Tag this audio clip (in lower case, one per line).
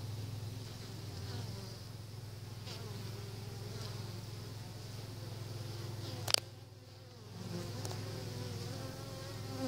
insect
fly
bee or wasp